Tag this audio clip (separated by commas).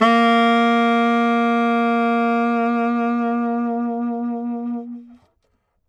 Music, Musical instrument, Wind instrument